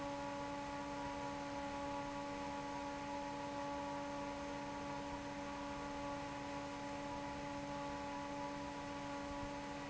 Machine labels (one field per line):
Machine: fan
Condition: normal